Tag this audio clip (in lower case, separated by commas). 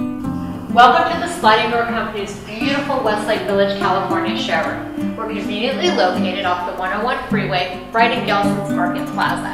music, speech